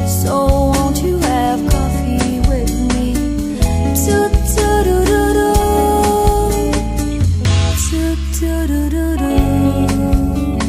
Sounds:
singing, music

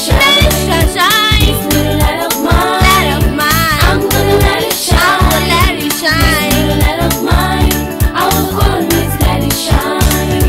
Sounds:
music, singing

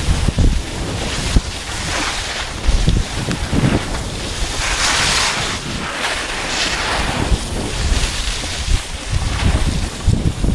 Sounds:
skiing

